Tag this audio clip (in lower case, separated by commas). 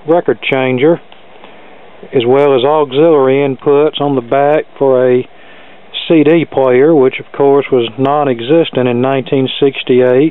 speech